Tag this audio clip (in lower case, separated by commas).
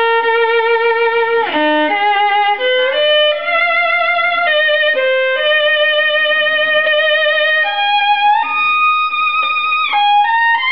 violin, musical instrument, music